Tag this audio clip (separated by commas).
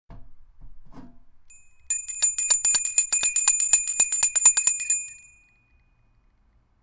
Bell